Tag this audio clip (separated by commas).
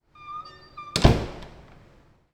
Squeak, Door, home sounds